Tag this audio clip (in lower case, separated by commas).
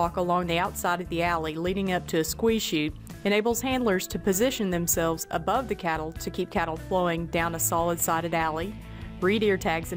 speech, music